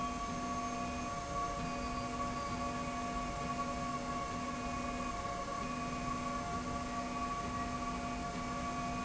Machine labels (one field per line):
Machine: slide rail